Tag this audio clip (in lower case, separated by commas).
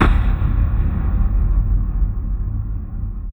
boom, explosion